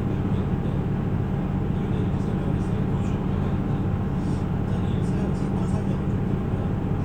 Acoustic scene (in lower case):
bus